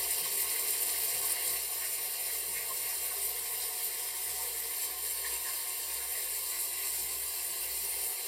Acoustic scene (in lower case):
restroom